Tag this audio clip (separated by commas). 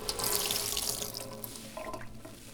Sink (filling or washing), Domestic sounds